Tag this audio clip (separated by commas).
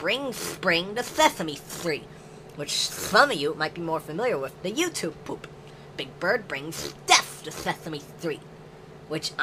Speech, Duck